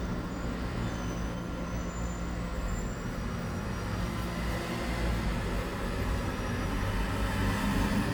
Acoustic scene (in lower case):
residential area